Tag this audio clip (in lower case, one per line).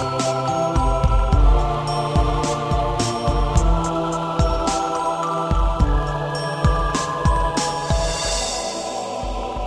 ambient music